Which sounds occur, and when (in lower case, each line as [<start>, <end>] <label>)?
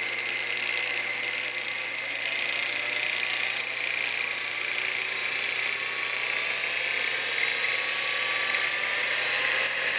[0.00, 9.95] mechanisms
[0.00, 9.95] pawl